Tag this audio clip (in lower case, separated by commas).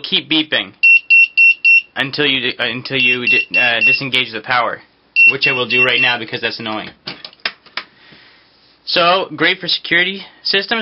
speech, beep